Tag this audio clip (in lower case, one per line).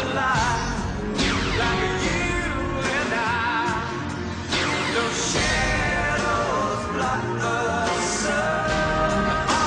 music
blues